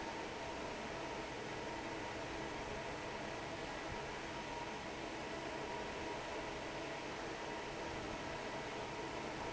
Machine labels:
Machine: fan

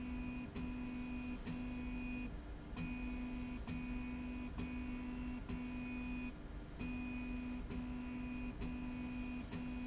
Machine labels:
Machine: slide rail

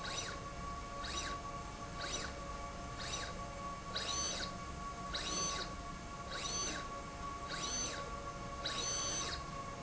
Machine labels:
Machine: slide rail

